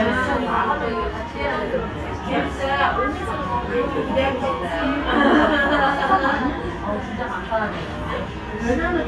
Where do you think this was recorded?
in a restaurant